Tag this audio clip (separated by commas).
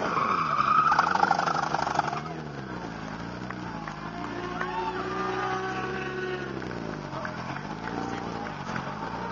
Speech, Race car, Vehicle, outside, urban or man-made, Motorcycle